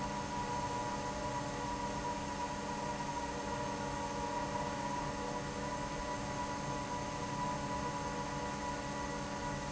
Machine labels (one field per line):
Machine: fan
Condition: normal